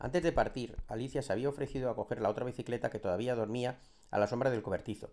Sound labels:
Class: speech